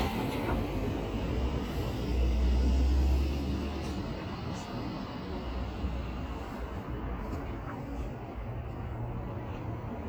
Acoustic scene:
street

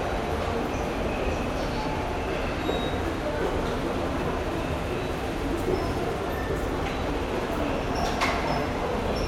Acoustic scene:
subway station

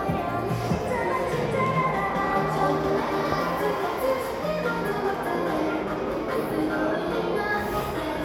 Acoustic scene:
crowded indoor space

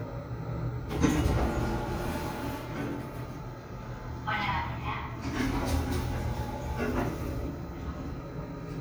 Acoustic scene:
elevator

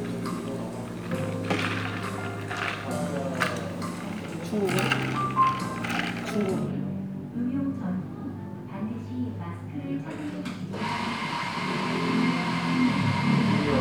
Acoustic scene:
cafe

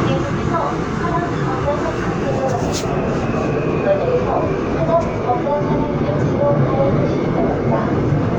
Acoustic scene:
subway train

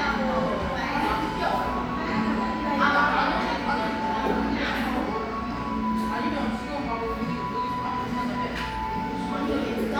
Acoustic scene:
crowded indoor space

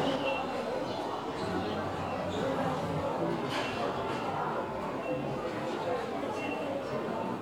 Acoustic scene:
crowded indoor space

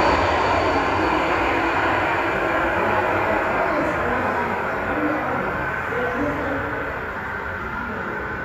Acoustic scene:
subway station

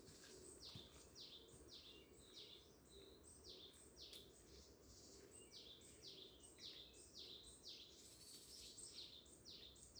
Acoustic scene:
park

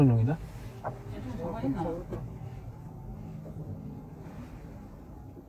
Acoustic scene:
car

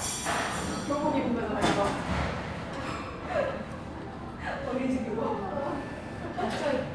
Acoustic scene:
restaurant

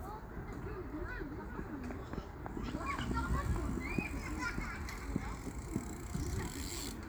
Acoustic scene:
park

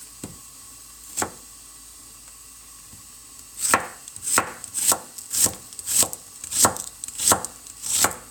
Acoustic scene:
kitchen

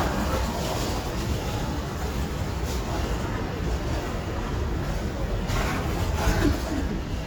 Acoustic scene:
residential area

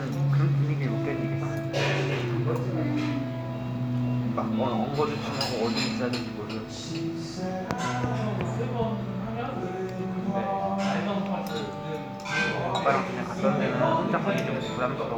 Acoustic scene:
crowded indoor space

